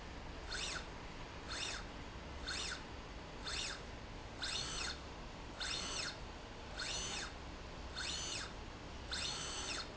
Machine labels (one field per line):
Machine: slide rail